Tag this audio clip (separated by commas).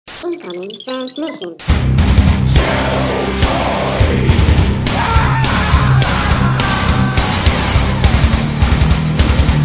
Speech, Music